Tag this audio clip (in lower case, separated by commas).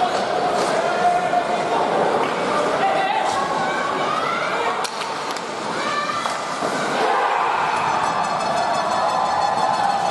speech, inside a public space, music